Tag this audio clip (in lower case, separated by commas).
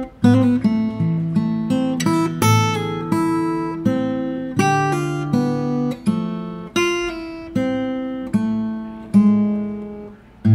acoustic guitar, music, musical instrument